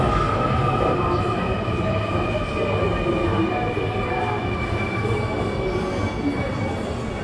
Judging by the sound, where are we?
in a subway station